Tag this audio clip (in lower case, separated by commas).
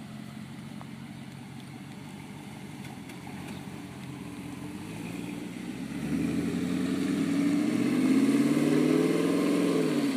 outside, urban or man-made, car, vehicle, medium engine (mid frequency)